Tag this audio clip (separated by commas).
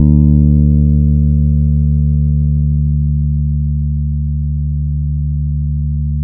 Plucked string instrument, Bass guitar, Guitar, Musical instrument, Music